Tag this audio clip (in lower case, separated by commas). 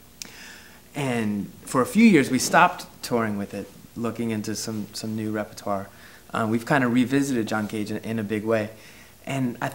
speech